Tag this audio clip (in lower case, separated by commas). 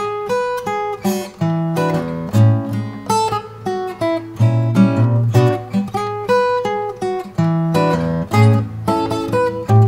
music, acoustic guitar